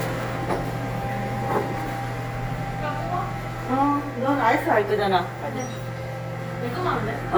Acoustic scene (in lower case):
cafe